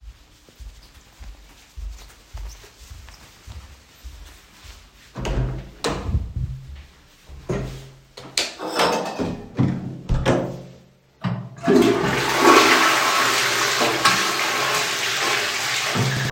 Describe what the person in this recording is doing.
walking to the toilet, entering, turning on the light and flushing the water